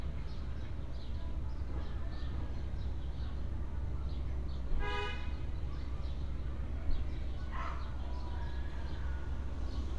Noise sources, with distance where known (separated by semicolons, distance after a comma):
car horn, near; dog barking or whining, near